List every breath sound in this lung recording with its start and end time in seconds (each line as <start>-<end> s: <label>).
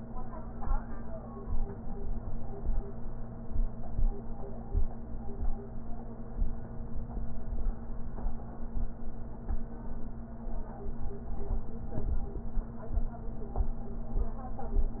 No breath sounds were labelled in this clip.